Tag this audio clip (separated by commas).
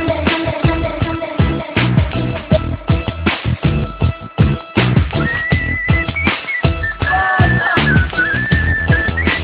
Music